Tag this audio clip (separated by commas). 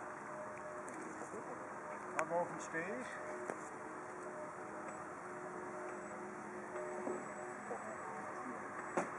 Speech